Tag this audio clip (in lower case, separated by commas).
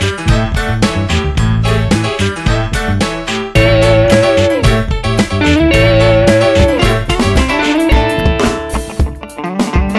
pop music, music